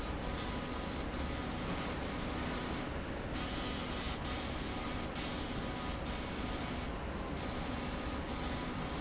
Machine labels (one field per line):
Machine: slide rail